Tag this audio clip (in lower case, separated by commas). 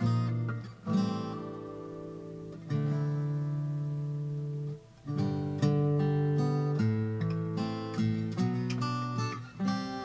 electric guitar, music, acoustic guitar, guitar, playing electric guitar, musical instrument, plucked string instrument, strum